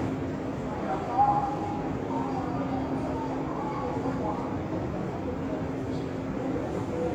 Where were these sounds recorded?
in a subway station